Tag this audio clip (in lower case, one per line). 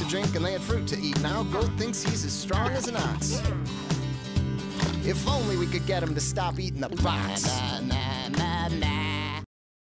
music
speech